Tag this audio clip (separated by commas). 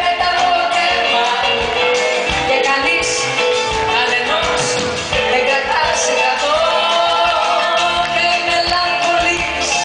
Music, Female singing